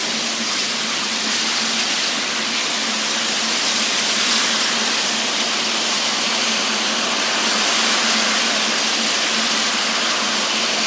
A loud hissing noise